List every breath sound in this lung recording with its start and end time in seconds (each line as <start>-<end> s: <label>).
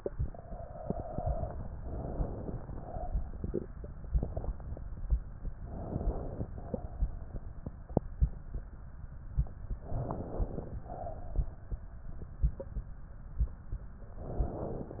0.00-1.58 s: exhalation
1.79-2.66 s: inhalation
2.70-3.69 s: exhalation
5.53-6.52 s: inhalation
6.56-7.55 s: exhalation
9.77-10.76 s: inhalation
10.80-12.11 s: exhalation
14.13-15.00 s: inhalation